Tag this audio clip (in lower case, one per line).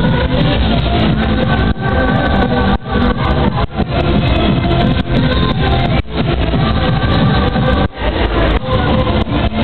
techno
music
disco
electronic music